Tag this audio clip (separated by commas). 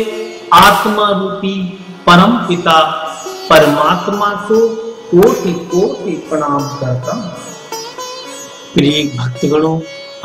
Mantra, Music, Speech